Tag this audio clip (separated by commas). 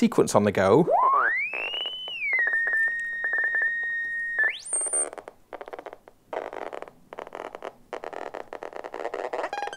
inside a small room, Music, Synthesizer, Speech